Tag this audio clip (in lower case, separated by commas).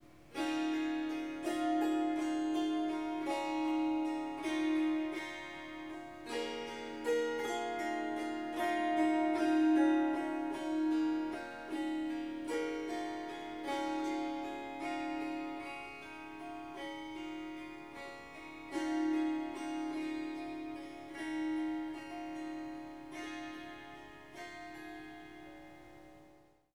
musical instrument, harp, music